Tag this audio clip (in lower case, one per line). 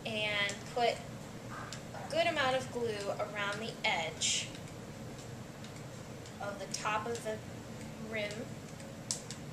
speech